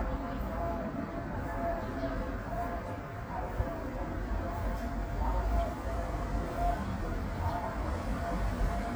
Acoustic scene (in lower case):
residential area